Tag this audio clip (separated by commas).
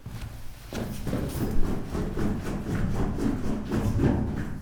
footsteps